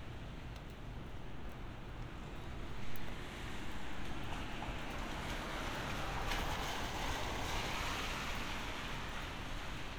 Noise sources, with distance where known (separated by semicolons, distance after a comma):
medium-sounding engine, near